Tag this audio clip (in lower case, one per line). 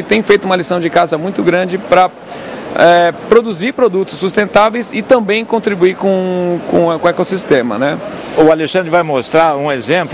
speech